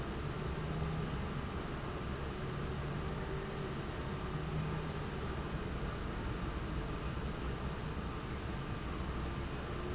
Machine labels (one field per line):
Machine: fan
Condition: abnormal